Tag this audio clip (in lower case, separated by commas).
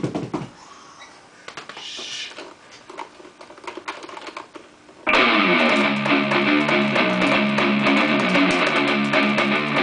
guitar, acoustic guitar, musical instrument, music, plucked string instrument